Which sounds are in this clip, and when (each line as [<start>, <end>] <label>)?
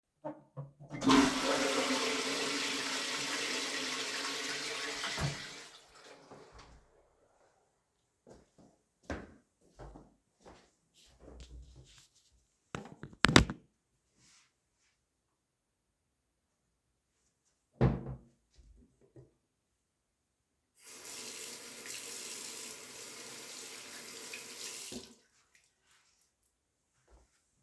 [0.83, 6.42] toilet flushing
[8.20, 12.21] footsteps
[17.72, 18.26] wardrobe or drawer
[17.72, 18.39] door
[20.70, 26.14] running water